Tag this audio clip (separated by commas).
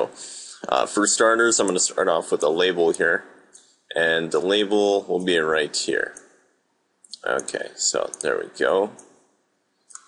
Speech